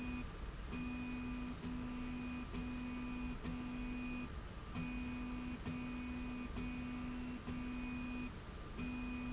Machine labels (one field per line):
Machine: slide rail